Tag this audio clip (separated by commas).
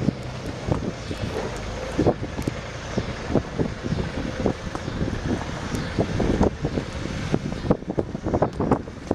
Vehicle, Truck